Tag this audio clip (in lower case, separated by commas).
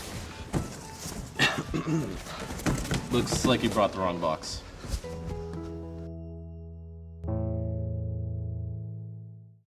music, speech